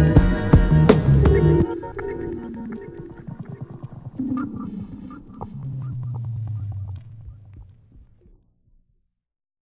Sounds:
music, silence

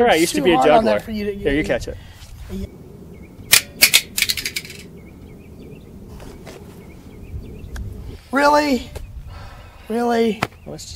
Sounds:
speech

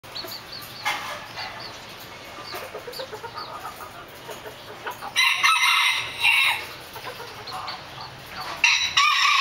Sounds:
chicken, speech, bird, fowl, domestic animals

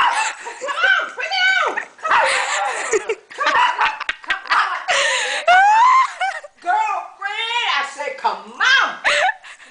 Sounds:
animal, domestic animals, speech, dog

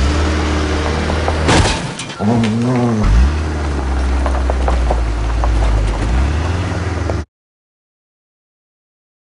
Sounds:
vehicle

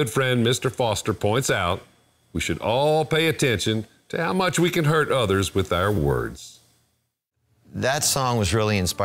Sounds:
speech, music

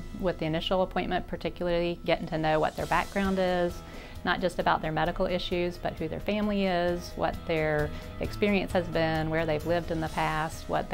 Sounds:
music, speech

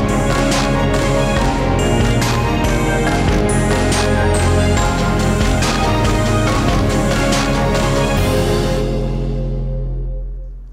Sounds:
theme music, music

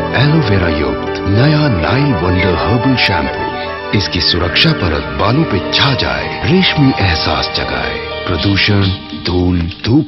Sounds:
music, speech

